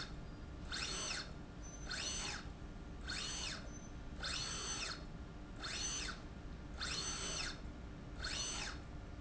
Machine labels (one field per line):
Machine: slide rail